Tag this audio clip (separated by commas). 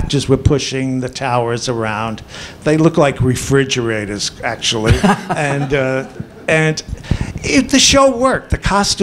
Speech